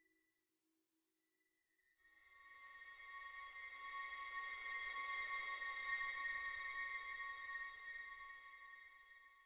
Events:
2.0s-9.4s: music

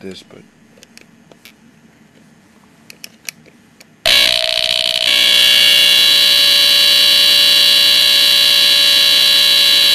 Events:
0.0s-0.4s: male speech
0.0s-4.0s: mechanisms
0.1s-0.4s: tap
0.7s-1.1s: tap
1.3s-1.5s: tap
2.8s-3.5s: tap
3.7s-3.9s: tap
4.0s-9.9s: sound equipment

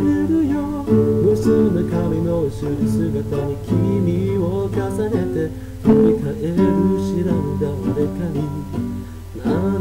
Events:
0.0s-0.9s: male singing
0.0s-9.8s: background noise
0.0s-9.8s: music
1.2s-5.5s: male singing
5.6s-5.7s: breathing
5.8s-8.7s: male singing
9.0s-9.2s: breathing
9.4s-9.8s: male singing

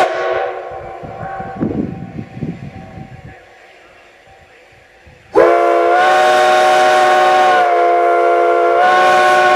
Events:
0.0s-1.6s: train horn
1.6s-3.5s: wind
5.2s-9.5s: train horn

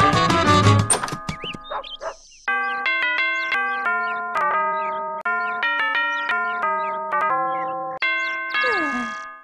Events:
0.9s-1.2s: door
1.1s-1.6s: walk
2.0s-2.1s: bark
2.4s-8.0s: music
8.0s-8.8s: bird call
8.0s-9.4s: ding-dong
8.5s-9.3s: human sounds

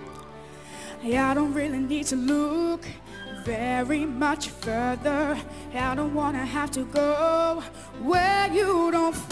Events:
0.0s-0.3s: shout
0.0s-9.3s: music
0.0s-0.3s: tick
0.4s-1.0s: breathing
1.0s-3.0s: child singing
3.0s-3.4s: shout
3.5s-5.5s: child singing
5.5s-5.7s: breathing
5.7s-7.7s: child singing
7.7s-8.0s: breathing
7.9s-9.3s: child singing

